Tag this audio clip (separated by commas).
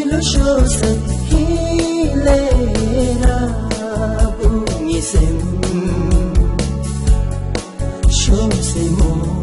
Music, Blues